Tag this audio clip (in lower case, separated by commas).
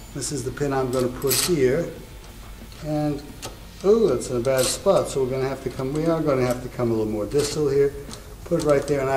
speech, wood, inside a small room